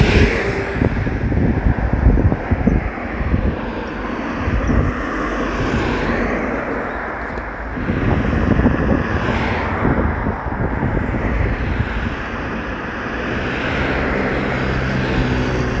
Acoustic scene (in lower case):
street